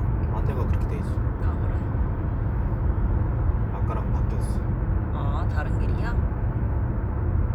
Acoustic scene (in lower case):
car